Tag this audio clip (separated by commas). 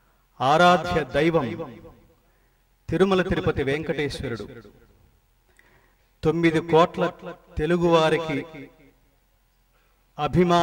Male speech, Speech, Narration